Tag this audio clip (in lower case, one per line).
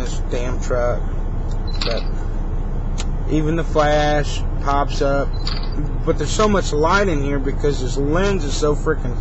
speech
single-lens reflex camera